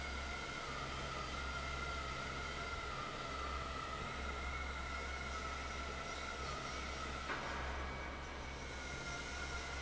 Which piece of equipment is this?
fan